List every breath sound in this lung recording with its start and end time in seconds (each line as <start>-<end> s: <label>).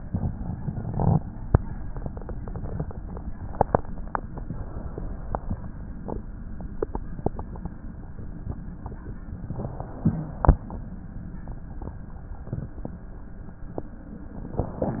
9.40-10.93 s: inhalation